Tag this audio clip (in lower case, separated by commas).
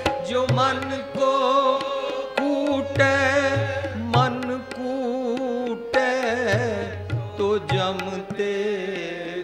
tabla